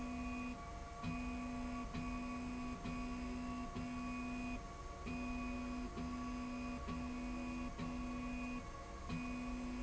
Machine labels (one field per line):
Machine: slide rail